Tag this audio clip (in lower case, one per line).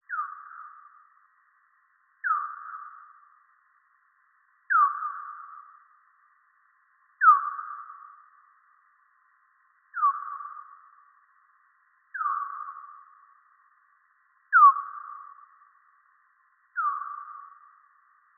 animal